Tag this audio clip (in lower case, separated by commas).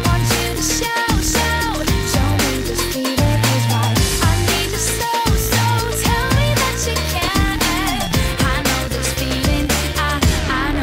music